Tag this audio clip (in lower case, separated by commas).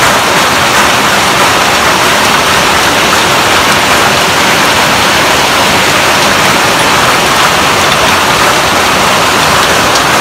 hail